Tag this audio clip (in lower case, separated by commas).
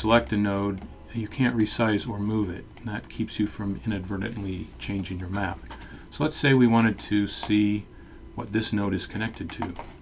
speech